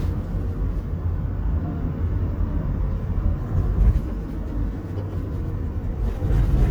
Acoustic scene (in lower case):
car